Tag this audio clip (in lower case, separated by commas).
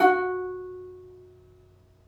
music, musical instrument, plucked string instrument